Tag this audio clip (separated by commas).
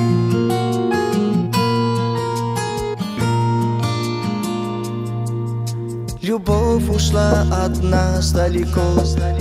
Music